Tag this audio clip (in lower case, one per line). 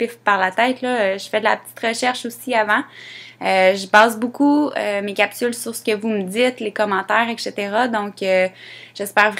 speech